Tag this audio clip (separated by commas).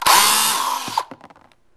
Tools, Power tool, Drill